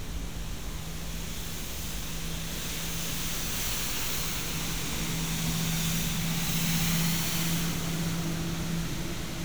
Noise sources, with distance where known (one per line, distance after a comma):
unidentified powered saw